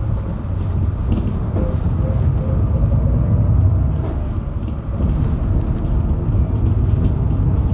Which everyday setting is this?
bus